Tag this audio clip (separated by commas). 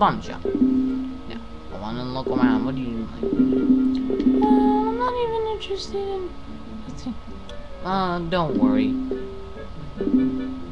Music, Speech